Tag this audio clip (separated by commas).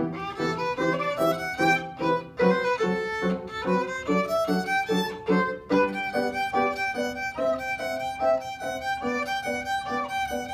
Musical instrument, Violin, Music